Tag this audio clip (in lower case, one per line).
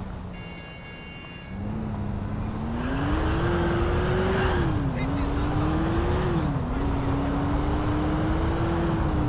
speech